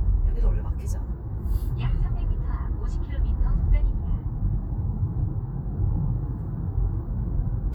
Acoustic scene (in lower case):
car